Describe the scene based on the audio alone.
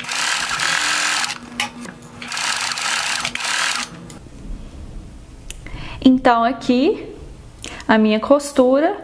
Several vibrations of a sewing machine, a woman speaks